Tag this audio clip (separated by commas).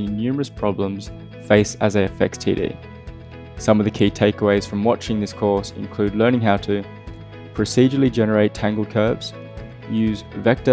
Speech, Music